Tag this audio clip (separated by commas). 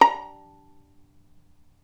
Bowed string instrument, Musical instrument, Music